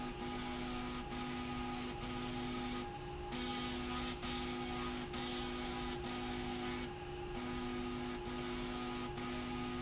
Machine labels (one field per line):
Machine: slide rail